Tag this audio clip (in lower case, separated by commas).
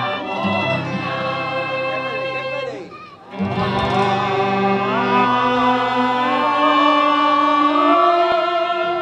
music, speech, female singing